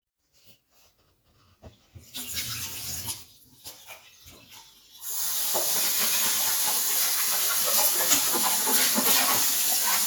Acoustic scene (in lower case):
kitchen